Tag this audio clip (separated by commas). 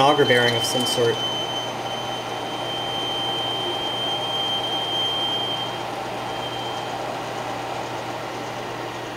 Speech